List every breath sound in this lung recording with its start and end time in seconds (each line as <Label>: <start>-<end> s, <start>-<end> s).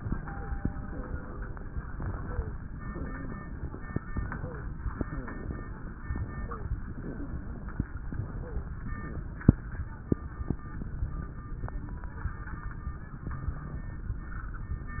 Wheeze: 2.18-2.51 s, 2.85-3.46 s, 4.34-4.67 s, 5.05-5.37 s, 6.36-6.68 s